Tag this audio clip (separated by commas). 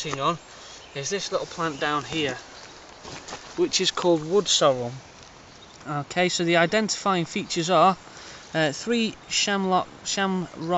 Speech